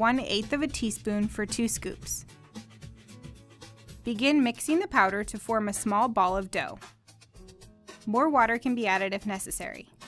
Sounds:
Speech, Music

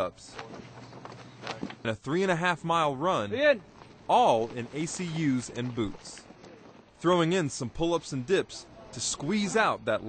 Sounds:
Speech

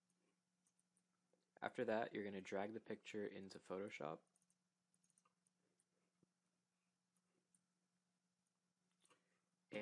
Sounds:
Speech

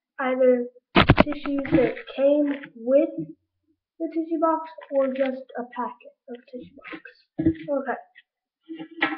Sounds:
Speech

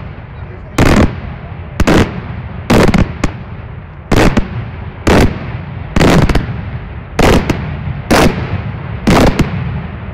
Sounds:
Fireworks

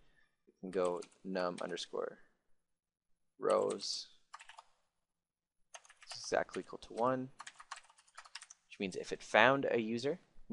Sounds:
Speech

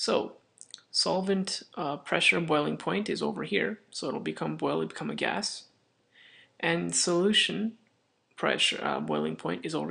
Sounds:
Speech

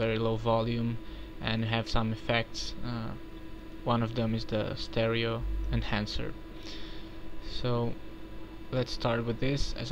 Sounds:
Speech

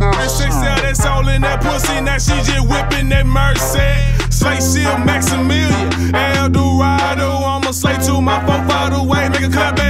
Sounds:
Middle Eastern music, Rhythm and blues, Blues, Music

